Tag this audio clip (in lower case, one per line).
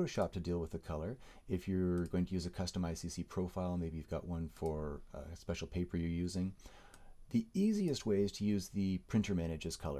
speech